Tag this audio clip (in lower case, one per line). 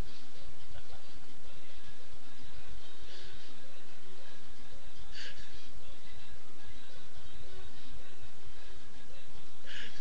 music